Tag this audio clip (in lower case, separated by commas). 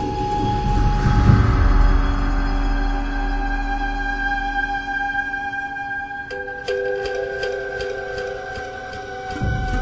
echo, music